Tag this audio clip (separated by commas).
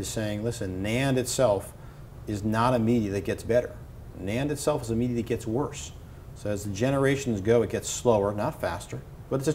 Speech